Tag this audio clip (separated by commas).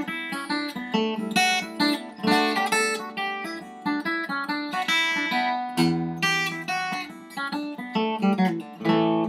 Musical instrument, Music, Guitar, Plucked string instrument